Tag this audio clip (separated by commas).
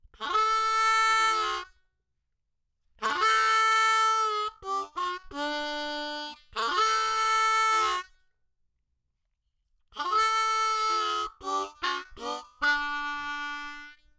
Music, Musical instrument, Harmonica